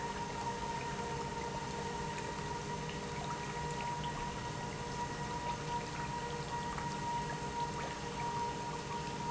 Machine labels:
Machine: pump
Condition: normal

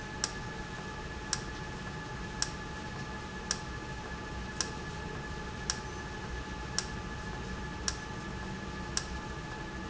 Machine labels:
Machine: valve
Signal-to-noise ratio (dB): -6 dB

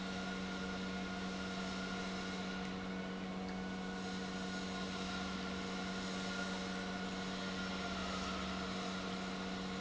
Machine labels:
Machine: pump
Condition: normal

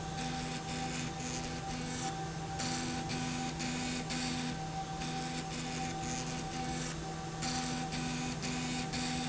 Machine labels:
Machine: slide rail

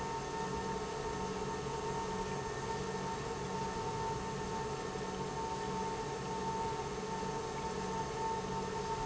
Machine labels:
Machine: pump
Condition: normal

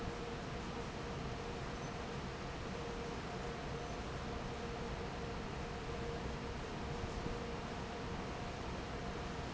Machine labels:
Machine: fan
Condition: normal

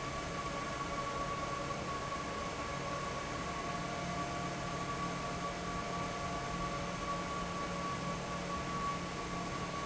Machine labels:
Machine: fan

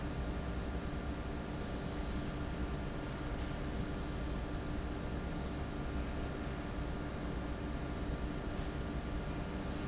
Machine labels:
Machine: fan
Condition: normal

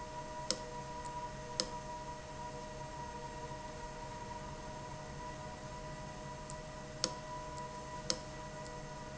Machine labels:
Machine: valve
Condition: abnormal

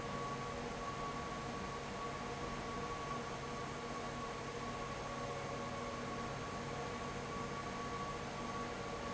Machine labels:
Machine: fan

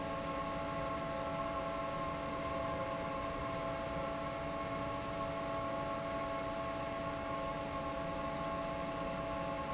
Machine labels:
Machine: fan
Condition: normal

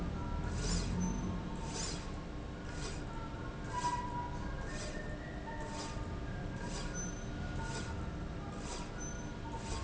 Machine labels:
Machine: slide rail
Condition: normal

